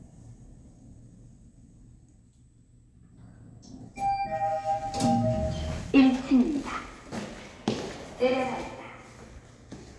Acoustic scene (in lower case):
elevator